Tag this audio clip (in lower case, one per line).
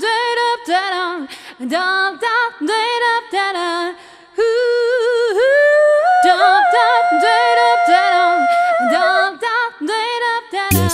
music